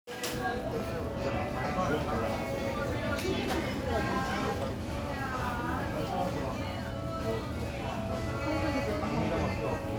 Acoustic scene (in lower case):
crowded indoor space